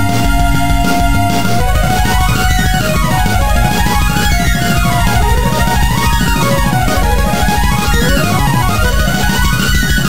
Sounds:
music

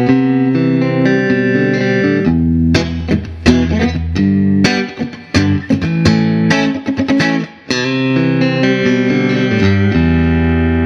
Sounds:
electric guitar, plucked string instrument, guitar, musical instrument, electronic tuner, music

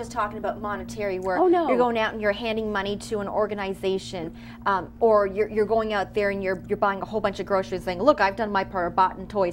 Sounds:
speech

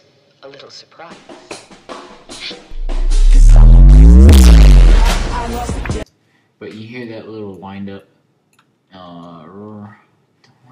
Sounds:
music, speech

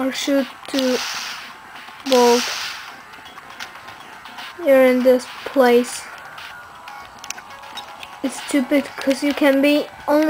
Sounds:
speech, music

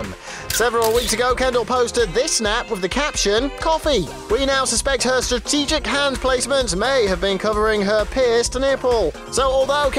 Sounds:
speech, music

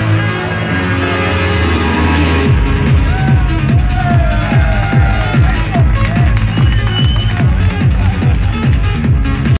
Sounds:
speech, music

